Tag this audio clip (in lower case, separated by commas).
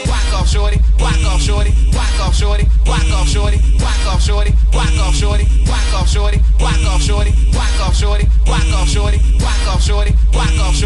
music